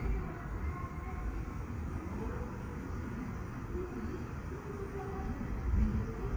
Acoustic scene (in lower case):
street